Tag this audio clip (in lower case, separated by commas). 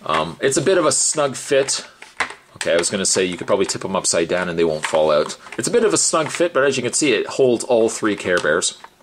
speech